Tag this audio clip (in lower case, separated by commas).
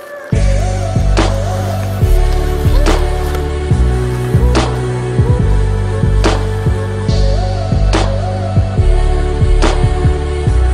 music